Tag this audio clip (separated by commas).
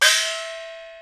Percussion, Musical instrument, Music, Gong